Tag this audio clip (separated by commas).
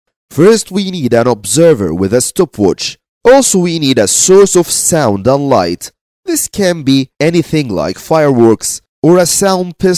Speech